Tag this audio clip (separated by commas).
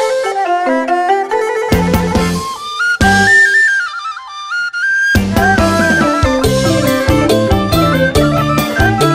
Wind instrument, Flute